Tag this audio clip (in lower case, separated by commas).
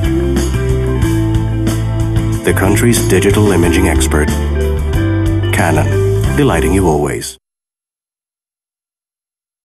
music, speech